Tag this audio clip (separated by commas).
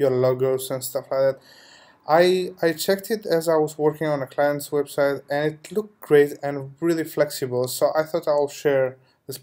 Speech